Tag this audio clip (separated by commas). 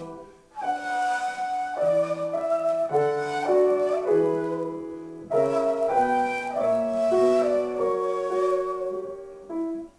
Flute, Musical instrument, Piano, Music, Classical music